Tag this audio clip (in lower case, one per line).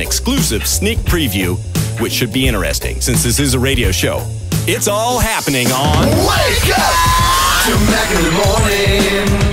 music
speech